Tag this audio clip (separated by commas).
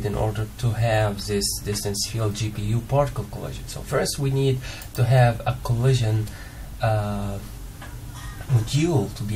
Speech